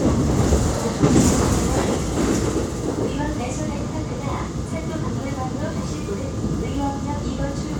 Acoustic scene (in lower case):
subway train